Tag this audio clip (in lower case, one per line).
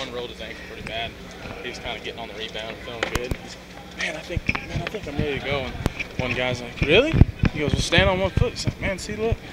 speech